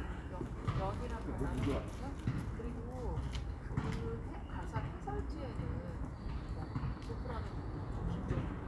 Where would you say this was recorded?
in a residential area